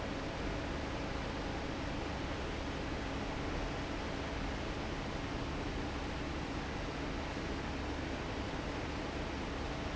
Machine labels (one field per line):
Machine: fan